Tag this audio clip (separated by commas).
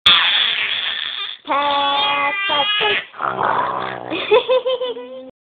Speech